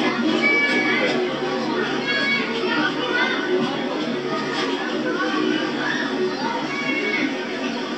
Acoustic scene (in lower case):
park